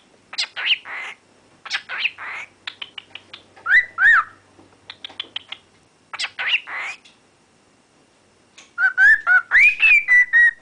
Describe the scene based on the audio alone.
Bird chirping and whistling